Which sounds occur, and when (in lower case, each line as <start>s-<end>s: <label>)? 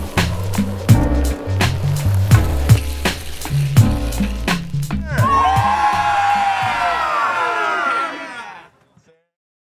0.0s-6.7s: music
4.9s-8.7s: shout
8.8s-9.3s: man speaking